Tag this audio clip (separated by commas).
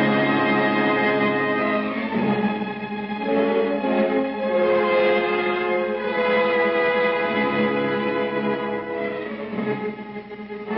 Music